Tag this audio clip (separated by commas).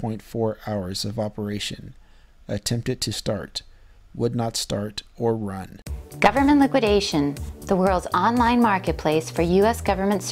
Speech, Music